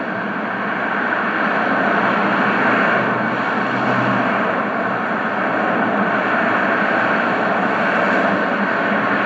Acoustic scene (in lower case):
street